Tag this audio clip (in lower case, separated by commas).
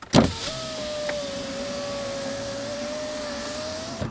squeak